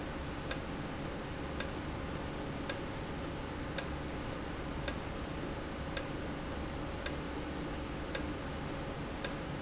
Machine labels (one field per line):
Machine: valve